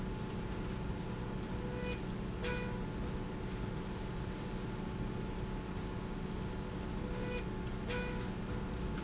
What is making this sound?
slide rail